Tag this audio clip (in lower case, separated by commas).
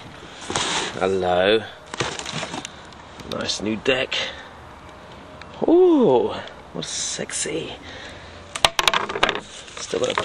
skateboard, speech